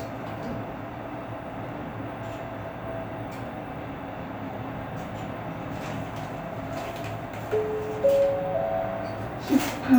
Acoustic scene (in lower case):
elevator